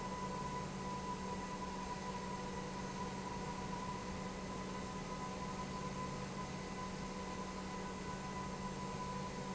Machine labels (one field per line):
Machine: pump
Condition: normal